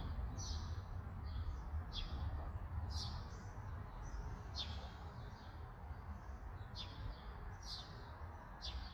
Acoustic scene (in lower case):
park